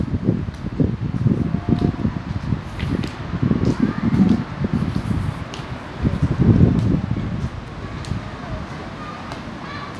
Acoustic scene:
residential area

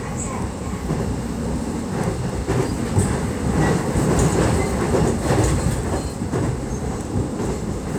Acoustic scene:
subway train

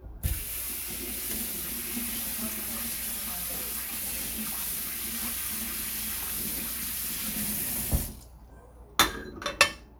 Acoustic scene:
kitchen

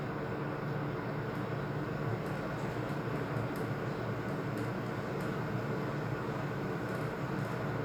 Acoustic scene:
elevator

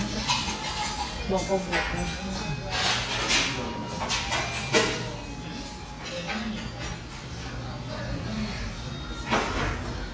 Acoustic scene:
restaurant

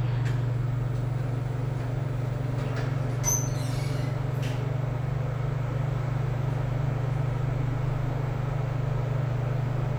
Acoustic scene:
elevator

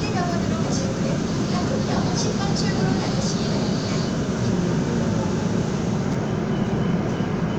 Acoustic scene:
subway train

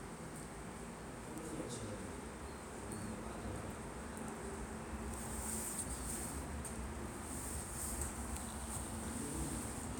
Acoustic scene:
subway station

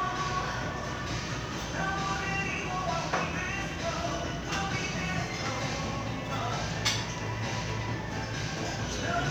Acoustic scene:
crowded indoor space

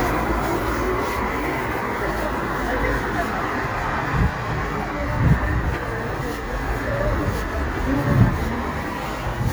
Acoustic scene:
street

